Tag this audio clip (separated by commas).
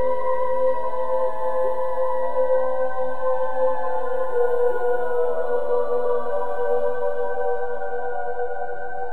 Music, Ambient music